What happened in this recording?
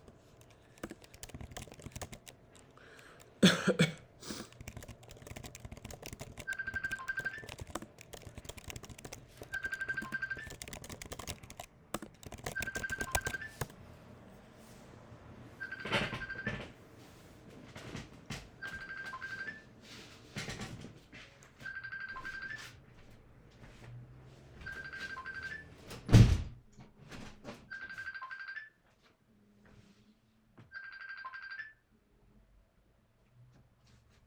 I was typing on my laptop when I received a call on my phone. I coughed just before the phone rang. Then I got up from my bed, closed the window and picked up the call.